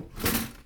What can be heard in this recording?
wooden drawer opening